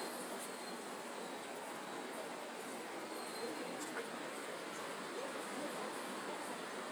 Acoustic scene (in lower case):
residential area